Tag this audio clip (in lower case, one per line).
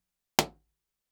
explosion